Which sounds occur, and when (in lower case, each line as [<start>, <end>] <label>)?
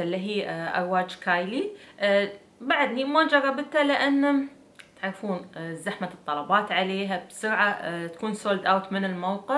[0.00, 1.75] woman speaking
[0.00, 9.55] background noise
[1.75, 1.95] breathing
[2.00, 2.39] human voice
[2.65, 4.53] woman speaking
[4.76, 4.87] clicking
[5.04, 6.15] woman speaking
[6.30, 8.10] woman speaking
[8.14, 8.22] clicking
[8.21, 9.55] woman speaking
[8.83, 8.91] clicking